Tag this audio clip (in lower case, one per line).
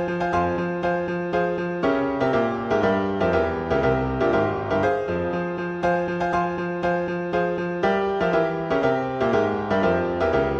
clarinet
piano
musical instrument
music